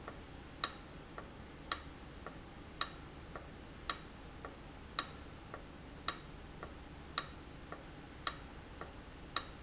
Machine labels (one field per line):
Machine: valve